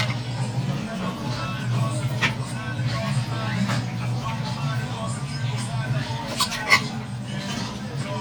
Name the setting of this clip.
restaurant